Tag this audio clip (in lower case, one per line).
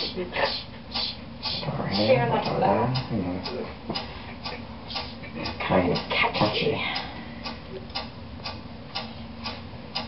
speech